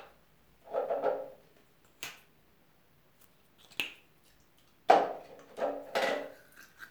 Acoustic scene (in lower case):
restroom